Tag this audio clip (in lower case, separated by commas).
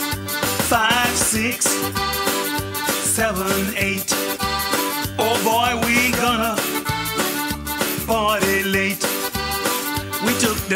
music